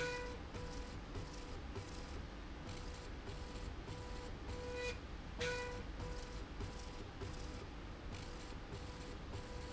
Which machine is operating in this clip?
slide rail